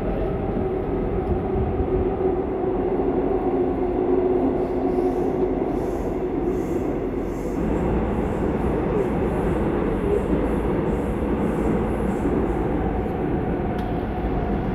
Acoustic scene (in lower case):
subway train